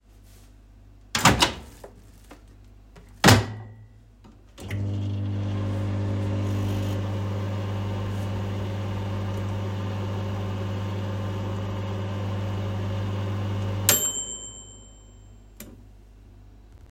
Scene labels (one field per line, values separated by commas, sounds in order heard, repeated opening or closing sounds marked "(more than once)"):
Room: kitchen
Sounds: microwave